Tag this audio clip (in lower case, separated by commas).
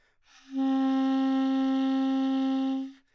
wind instrument, musical instrument, music